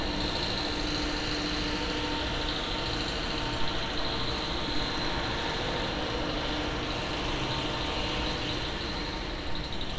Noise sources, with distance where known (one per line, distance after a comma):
unidentified impact machinery